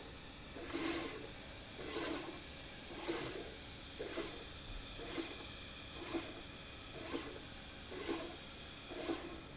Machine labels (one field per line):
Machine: slide rail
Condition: abnormal